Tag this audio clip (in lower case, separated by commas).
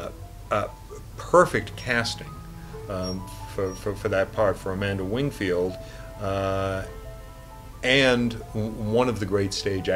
speech, music